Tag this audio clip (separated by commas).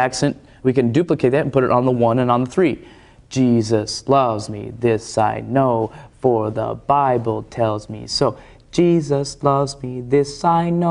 Speech